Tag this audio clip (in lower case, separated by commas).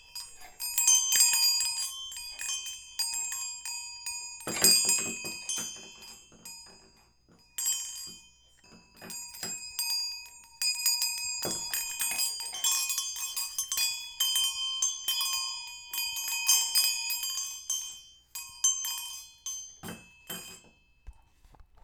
bell, chime